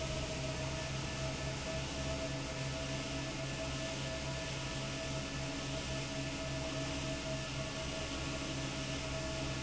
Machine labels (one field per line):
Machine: fan